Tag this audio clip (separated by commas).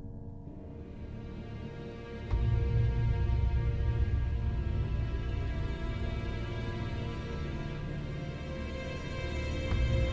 Music